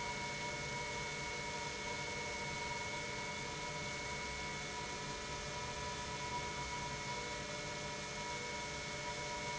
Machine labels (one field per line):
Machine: pump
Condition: normal